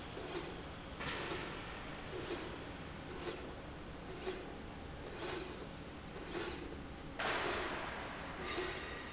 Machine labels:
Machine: slide rail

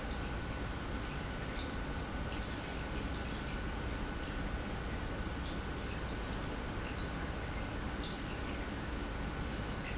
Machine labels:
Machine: pump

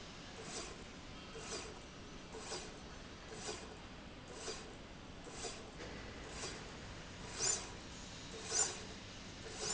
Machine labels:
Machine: slide rail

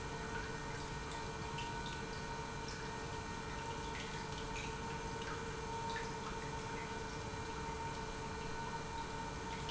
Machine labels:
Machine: pump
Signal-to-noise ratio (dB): 0 dB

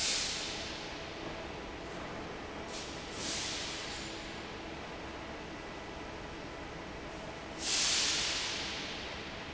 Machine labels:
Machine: fan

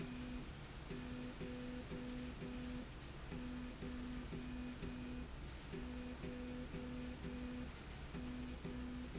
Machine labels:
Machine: slide rail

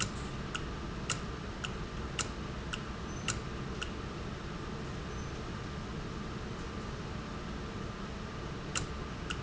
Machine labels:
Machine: valve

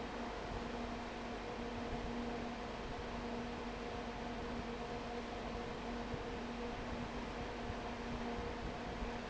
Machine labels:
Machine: fan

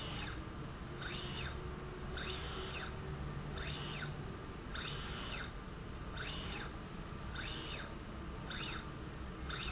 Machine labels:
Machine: slide rail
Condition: normal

